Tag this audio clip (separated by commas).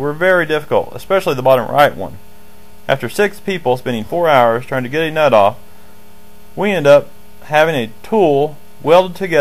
Speech